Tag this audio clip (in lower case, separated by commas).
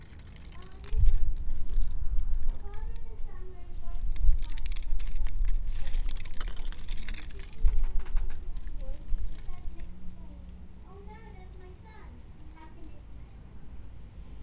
human voice, speech, child speech